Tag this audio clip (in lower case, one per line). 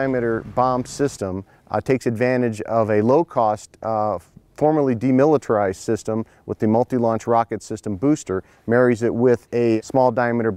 speech